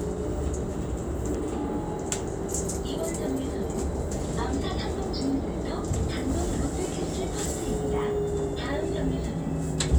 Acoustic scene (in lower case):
bus